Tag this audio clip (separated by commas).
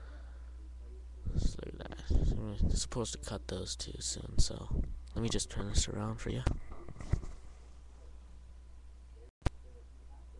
Speech